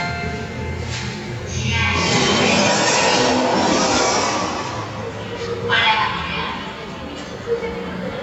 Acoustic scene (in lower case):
elevator